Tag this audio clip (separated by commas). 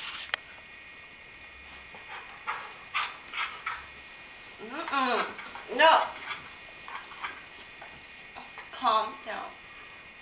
pets, Animal, Dog, Speech